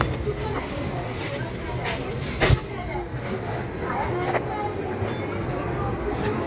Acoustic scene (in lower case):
crowded indoor space